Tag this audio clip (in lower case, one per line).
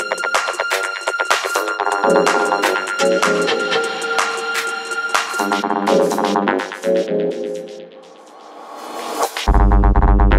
music